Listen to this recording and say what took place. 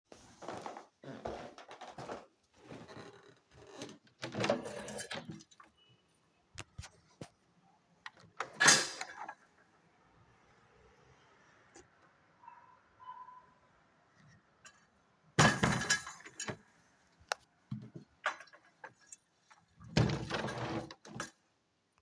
I walked to the living room window, unlocked it, and pushed it open. Outside, I could hear distant vehicle noise while walking back.